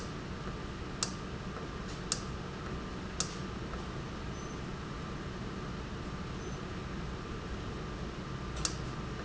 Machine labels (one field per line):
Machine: valve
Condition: normal